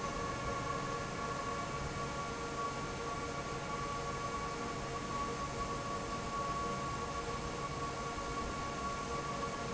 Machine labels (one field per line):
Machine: fan